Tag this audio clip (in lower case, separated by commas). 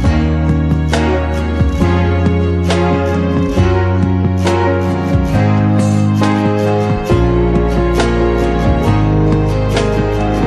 guitar, plucked string instrument, electric guitar, music, acoustic guitar, strum, musical instrument